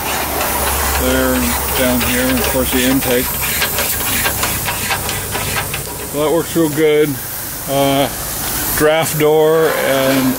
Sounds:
steam, speech

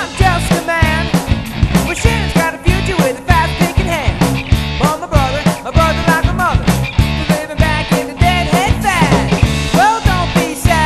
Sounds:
music

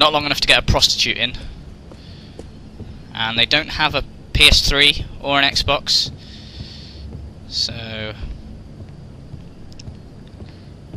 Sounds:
speech

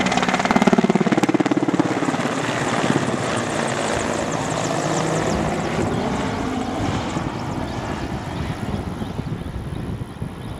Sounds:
vehicle, helicopter

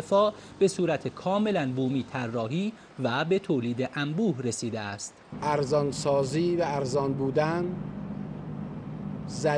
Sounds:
speech, inside a large room or hall

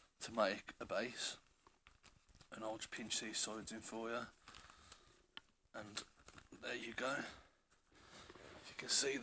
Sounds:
speech, inside a small room

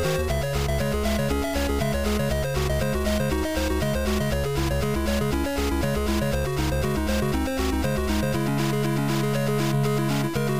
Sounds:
music

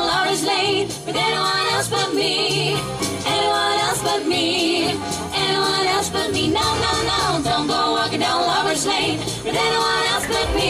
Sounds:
jingle bell, music

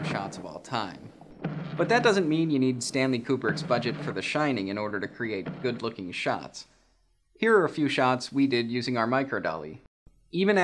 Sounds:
speech

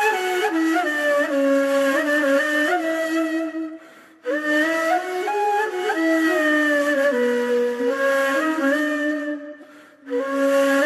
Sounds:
music

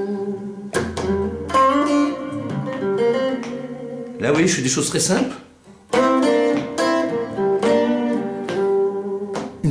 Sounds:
guitar, music, electric guitar, musical instrument, speech, plucked string instrument

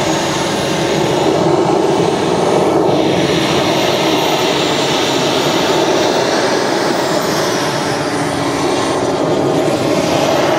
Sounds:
aircraft engine, airplane, aircraft

